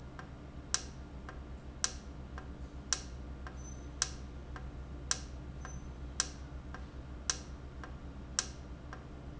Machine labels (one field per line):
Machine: valve